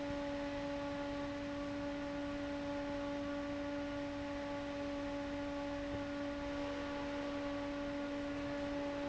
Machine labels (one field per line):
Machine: fan